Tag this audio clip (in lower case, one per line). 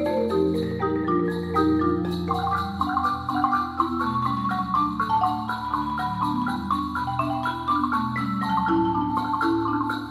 vibraphone
music
xylophone
playing marimba